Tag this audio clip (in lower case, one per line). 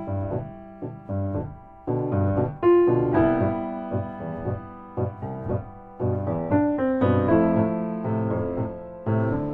music
speech